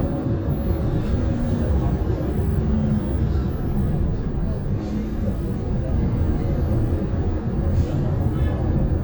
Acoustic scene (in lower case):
bus